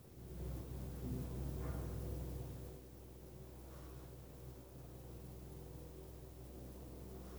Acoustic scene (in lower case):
elevator